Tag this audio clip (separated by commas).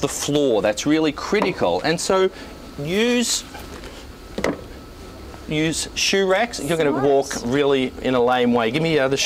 Speech, inside a small room